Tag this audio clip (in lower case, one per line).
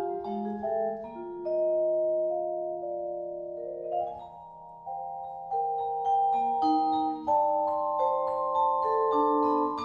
playing vibraphone